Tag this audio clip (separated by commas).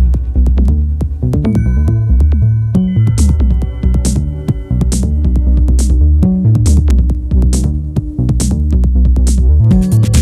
Music, Techno, Electronic music